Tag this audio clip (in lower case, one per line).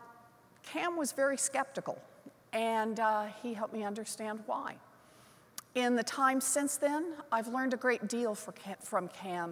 narration
female speech
speech